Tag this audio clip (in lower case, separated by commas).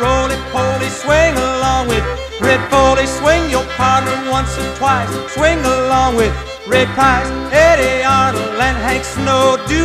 country, music